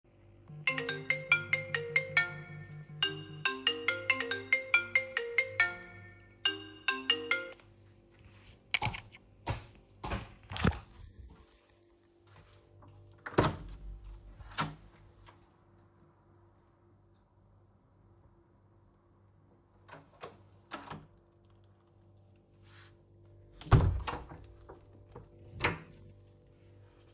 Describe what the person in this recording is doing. A phone started ringing in another room. I walked quickly toward the sound with audible footsteps. I opened the door to reach the phone and answered it before closing the door again.